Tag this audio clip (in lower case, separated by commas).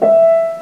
piano, musical instrument, keyboard (musical), music